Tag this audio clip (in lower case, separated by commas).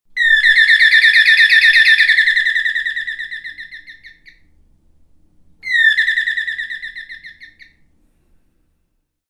animal, bird, wild animals